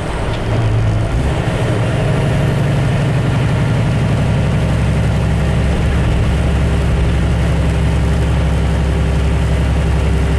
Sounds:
vehicle

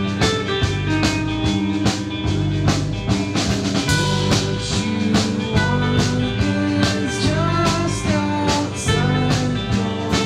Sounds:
music

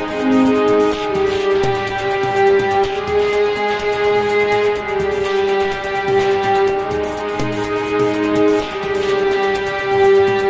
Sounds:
musical instrument
electric guitar
guitar
music

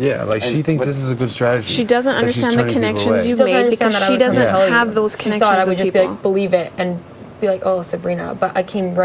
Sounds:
inside a small room
speech

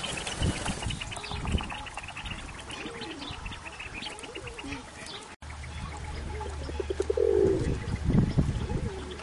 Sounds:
pigeon
bird

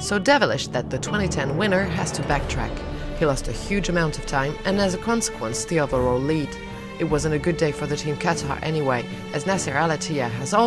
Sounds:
speech
music

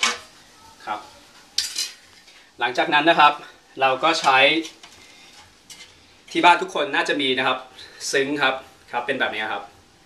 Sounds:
dishes, pots and pans
silverware

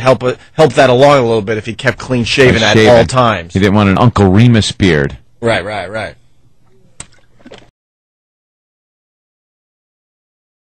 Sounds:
speech

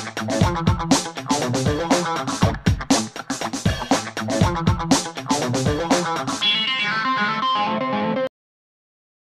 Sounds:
effects unit
distortion
music

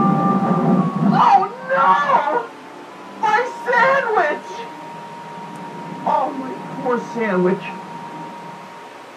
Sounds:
music
speech

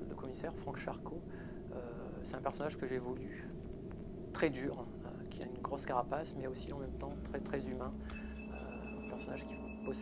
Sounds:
speech

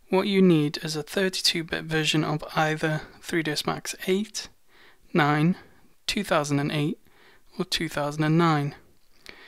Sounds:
speech

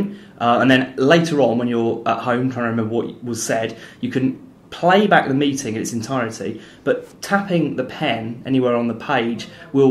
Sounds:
speech

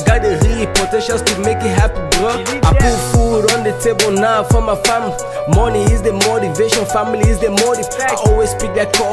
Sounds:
music

